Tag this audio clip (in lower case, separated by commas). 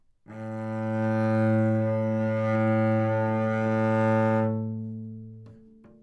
bowed string instrument, musical instrument, music